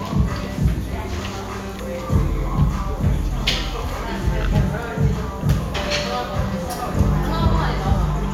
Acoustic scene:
cafe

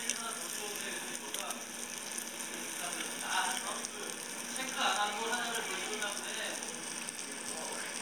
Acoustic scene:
restaurant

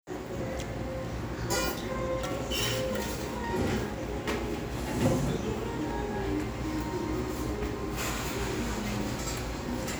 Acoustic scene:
restaurant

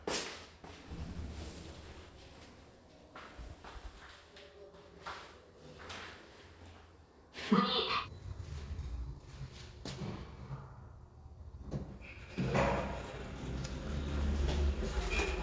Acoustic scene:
elevator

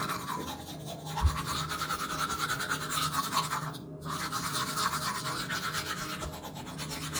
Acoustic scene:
restroom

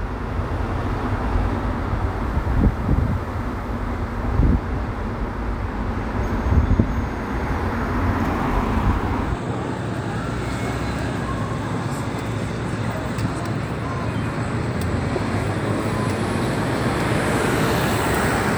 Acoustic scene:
street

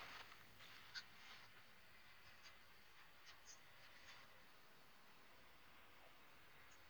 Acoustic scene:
elevator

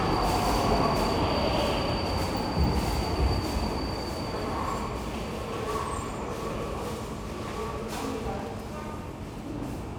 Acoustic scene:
subway station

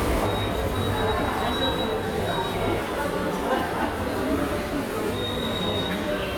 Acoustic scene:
subway station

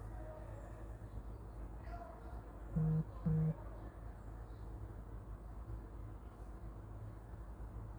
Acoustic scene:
park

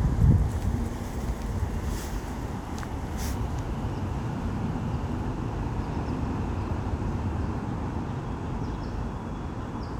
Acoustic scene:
residential area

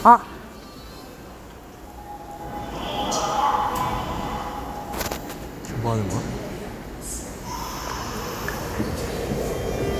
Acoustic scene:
subway station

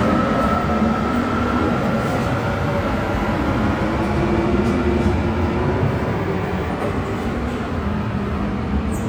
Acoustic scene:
subway station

